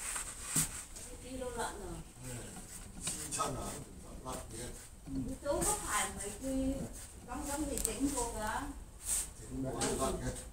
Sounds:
Speech, Tools

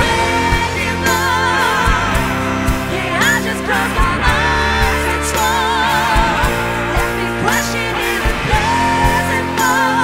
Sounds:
Orchestra, Music

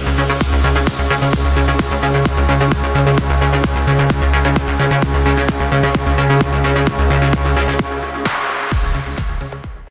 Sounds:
Music

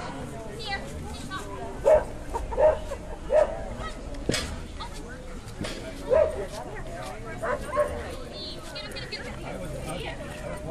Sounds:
Speech

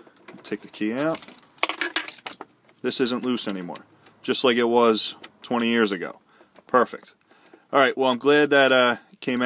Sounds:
Speech

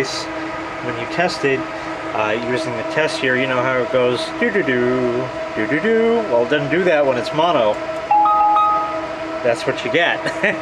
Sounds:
inside a small room, Speech

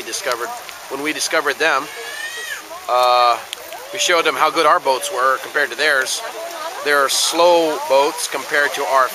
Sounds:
Speech

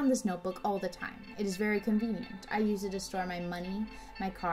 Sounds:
Music, Speech

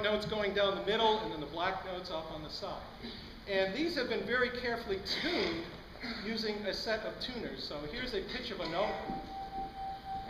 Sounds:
Speech

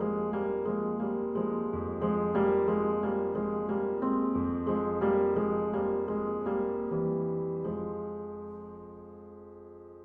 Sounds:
Music, Tender music

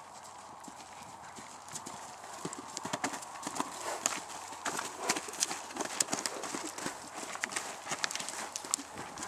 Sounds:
horse neighing

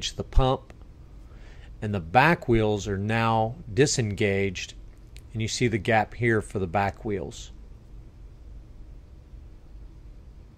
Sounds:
Speech

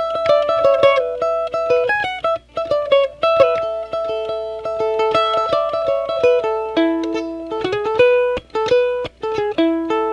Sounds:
Music, Plucked string instrument

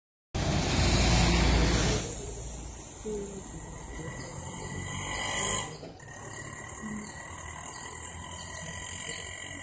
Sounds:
Speech, outside, urban or man-made, Vehicle

